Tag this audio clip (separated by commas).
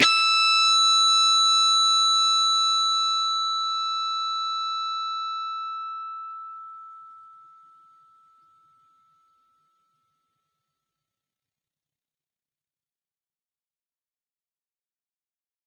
Musical instrument, Music, Guitar, Plucked string instrument